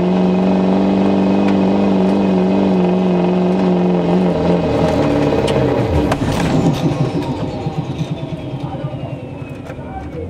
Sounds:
Car, Speech, Vehicle

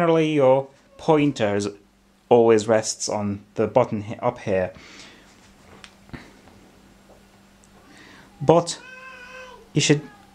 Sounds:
Speech

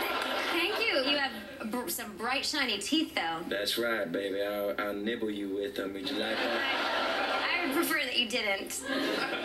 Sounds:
Speech

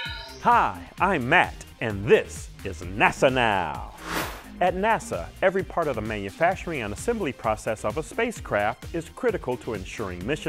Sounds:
Speech, Music

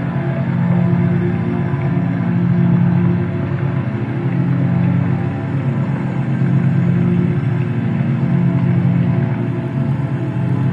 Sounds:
Ambient music, Electronic music, Music

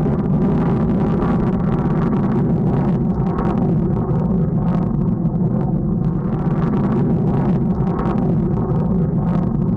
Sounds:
missile launch

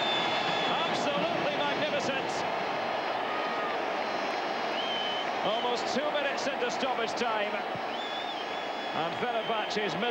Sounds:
Speech

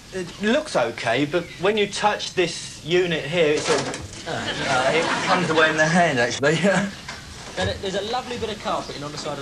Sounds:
Speech

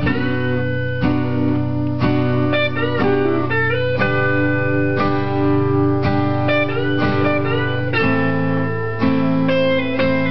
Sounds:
Plucked string instrument, Music, Electric guitar, Acoustic guitar, Musical instrument, Guitar

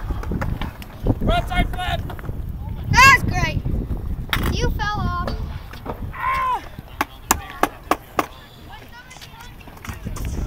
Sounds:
Bicycle

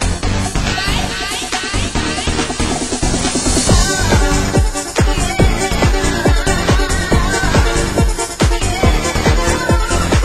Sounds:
Music

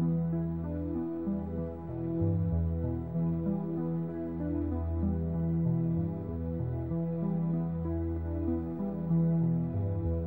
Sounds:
Music

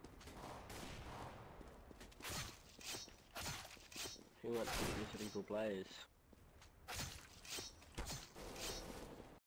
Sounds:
Speech

